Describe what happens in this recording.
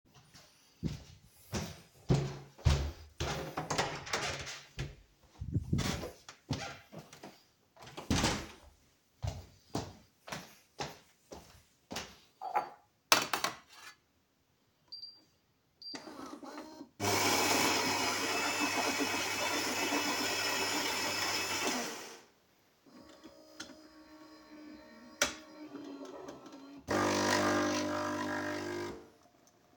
I walk to a door and close it. Then I go to the kitchen, grab a coffee mug and prepare a coffee